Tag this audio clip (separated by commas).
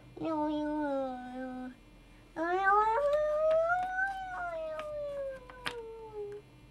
Speech, Human voice